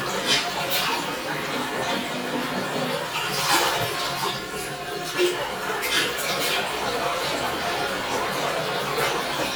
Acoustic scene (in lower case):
restroom